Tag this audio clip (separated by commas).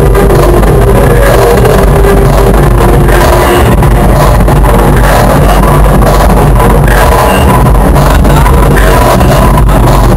Music, Electronic music, Techno